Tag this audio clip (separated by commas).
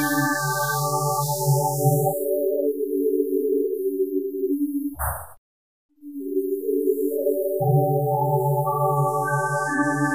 Music, Electronic music, Ambient music